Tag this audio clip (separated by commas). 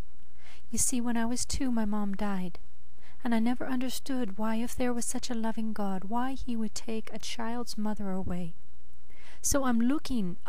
Speech